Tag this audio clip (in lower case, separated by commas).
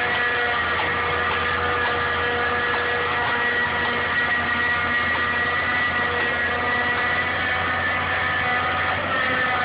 vehicle, idling, accelerating, heavy engine (low frequency)